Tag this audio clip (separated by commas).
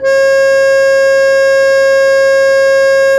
Music, Keyboard (musical), Musical instrument, Organ